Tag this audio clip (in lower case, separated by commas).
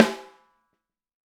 music, drum, percussion, musical instrument, snare drum